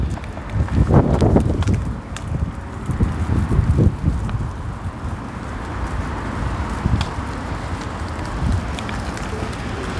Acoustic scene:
street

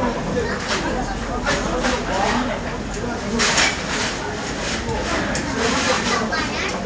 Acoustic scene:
restaurant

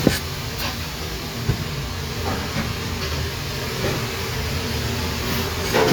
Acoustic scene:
kitchen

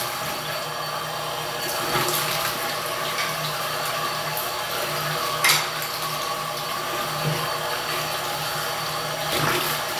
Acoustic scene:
restroom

